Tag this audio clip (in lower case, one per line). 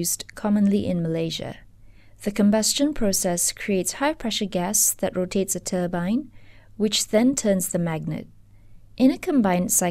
speech